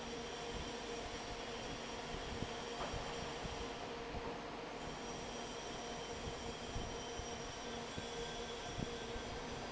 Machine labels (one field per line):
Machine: fan